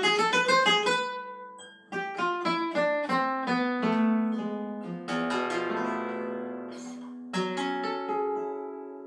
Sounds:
Guitar, Plucked string instrument, Music, Musical instrument, Flamenco, Acoustic guitar

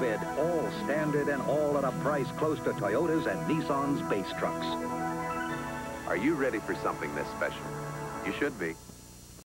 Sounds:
Speech, Music

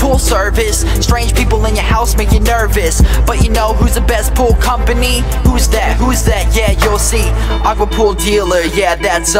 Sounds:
Music

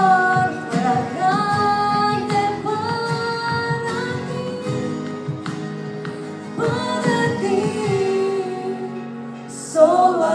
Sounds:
Female singing, Music, Male singing

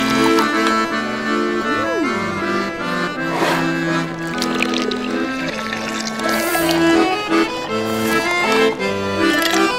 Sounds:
Music

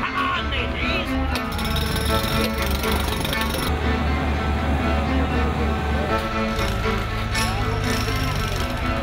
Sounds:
Speech, Music

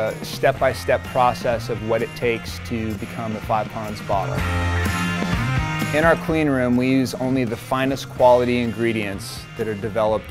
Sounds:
Music, Speech

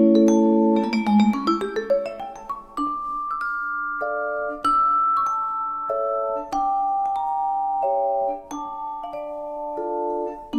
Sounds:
Percussion

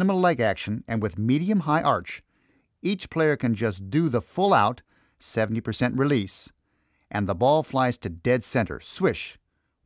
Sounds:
Speech

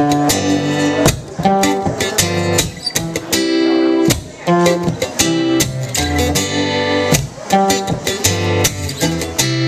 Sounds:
Speech, Music

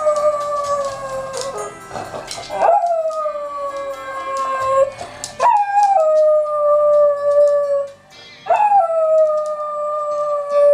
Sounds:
dog howling

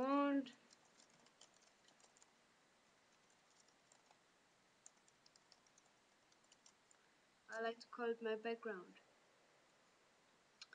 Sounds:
Speech

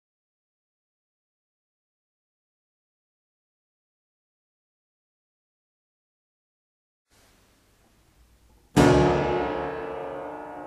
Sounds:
Harpsichord

